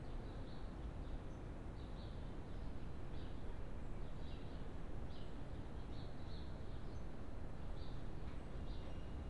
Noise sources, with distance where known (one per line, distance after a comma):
background noise